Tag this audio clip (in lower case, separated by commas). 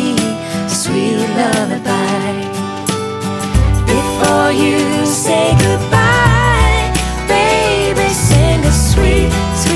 lullaby, music